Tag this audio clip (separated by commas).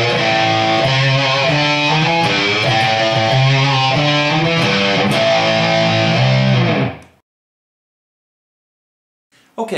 Strum, Speech, Music, Musical instrument, Guitar, Plucked string instrument